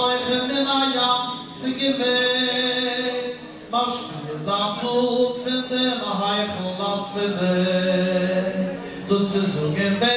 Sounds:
Male singing

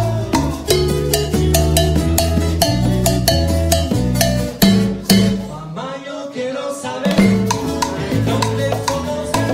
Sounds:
Salsa music, Music

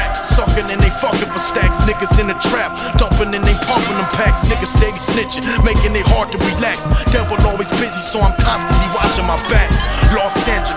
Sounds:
Music

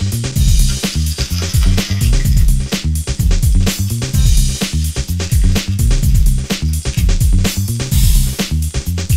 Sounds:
Music

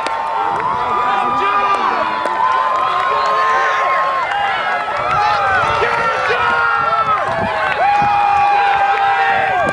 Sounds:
outside, urban or man-made, Speech, Run

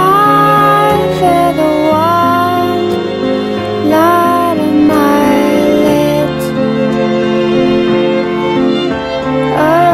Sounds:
Music

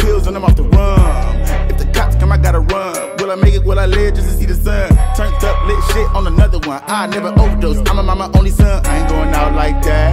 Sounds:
Rapping

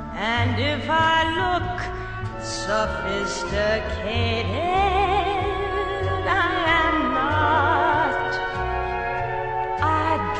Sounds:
Music

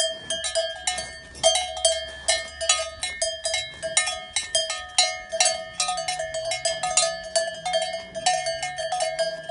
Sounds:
cattle

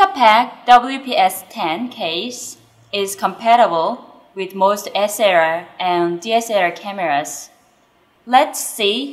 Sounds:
Speech

